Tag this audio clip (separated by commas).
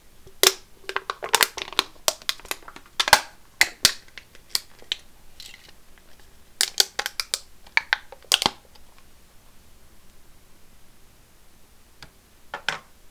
Crumpling